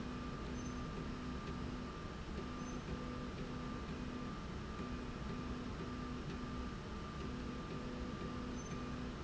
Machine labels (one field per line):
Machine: slide rail